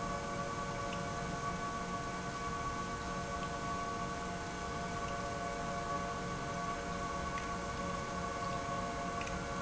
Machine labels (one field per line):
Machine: pump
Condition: abnormal